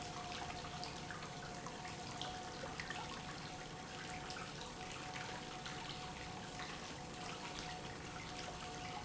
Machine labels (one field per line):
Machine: pump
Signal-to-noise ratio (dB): 6 dB